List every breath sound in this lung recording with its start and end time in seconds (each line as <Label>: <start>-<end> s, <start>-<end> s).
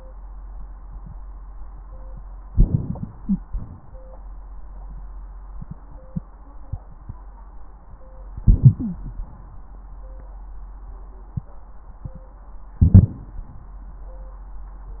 Inhalation: 2.52-3.40 s, 8.37-9.05 s, 12.84-13.13 s
Exhalation: 3.47-4.00 s
Wheeze: 8.79-9.05 s
Crackles: 2.52-3.40 s